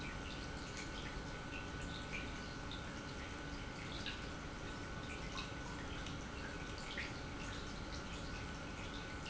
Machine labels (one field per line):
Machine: pump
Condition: normal